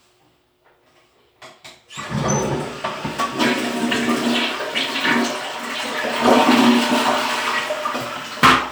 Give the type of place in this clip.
restroom